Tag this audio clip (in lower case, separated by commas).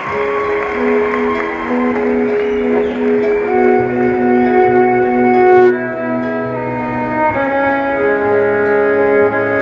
inside a public space, music, inside a large room or hall